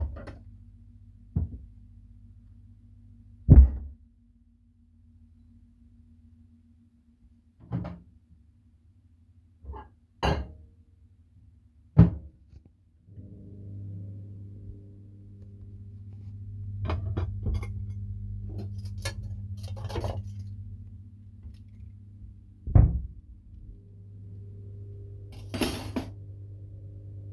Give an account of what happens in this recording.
I opened the fridge, placed something then closed the fridge. I then opened the microwave placed a bowl, opened the cutlery drawer and got some cutlery.